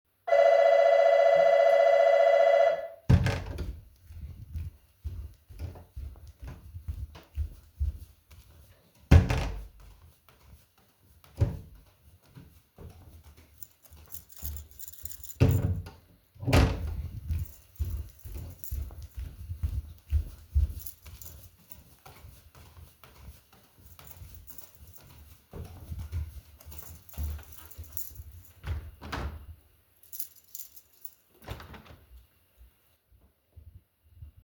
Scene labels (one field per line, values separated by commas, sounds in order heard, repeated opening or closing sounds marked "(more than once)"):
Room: hallway, living room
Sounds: bell ringing, door (more than once), footsteps, keys